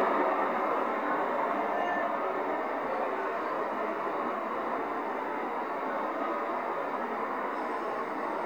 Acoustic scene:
street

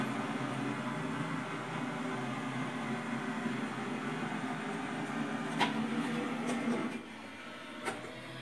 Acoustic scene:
kitchen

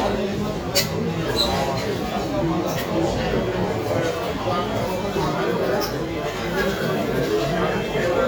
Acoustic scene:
cafe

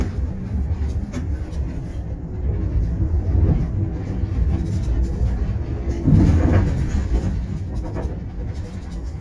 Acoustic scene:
bus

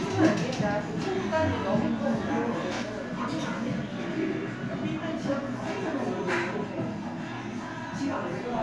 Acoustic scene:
crowded indoor space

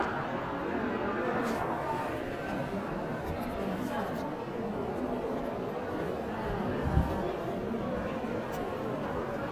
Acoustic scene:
crowded indoor space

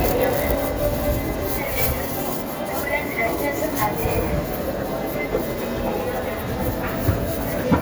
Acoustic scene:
subway station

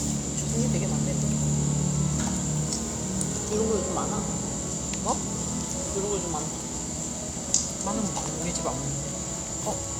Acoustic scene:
cafe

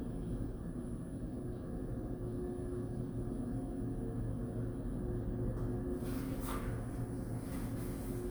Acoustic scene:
elevator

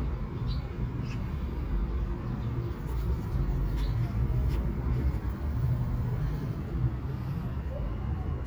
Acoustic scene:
park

